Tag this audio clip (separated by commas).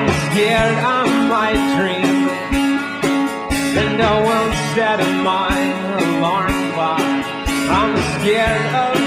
Music